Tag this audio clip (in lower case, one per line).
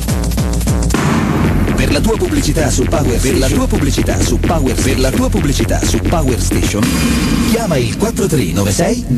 radio
music